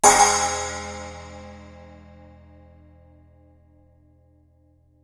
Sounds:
Percussion, Music, Crash cymbal, Cymbal, Musical instrument

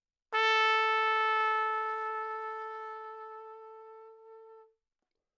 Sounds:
Brass instrument, Musical instrument, Trumpet, Music

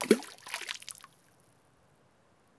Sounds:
Liquid, splatter, Water

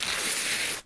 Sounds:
Tearing

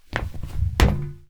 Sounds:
Walk

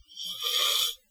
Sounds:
Hiss

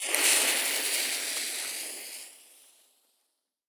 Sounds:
Fire

